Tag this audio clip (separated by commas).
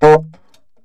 Musical instrument, woodwind instrument, Music